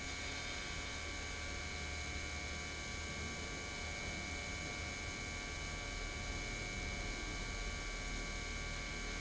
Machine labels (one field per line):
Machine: pump